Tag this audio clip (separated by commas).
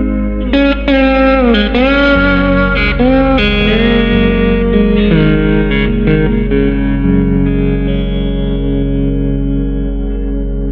playing steel guitar